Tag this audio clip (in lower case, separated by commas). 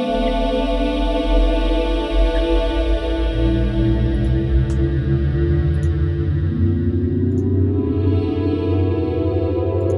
music